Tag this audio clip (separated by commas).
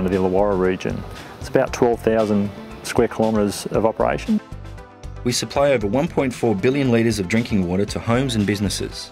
Speech, Music